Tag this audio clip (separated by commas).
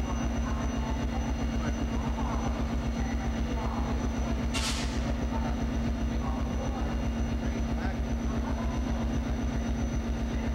Train, Rail transport, Speech, Vehicle